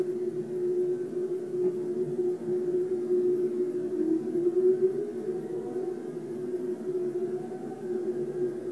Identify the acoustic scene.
subway train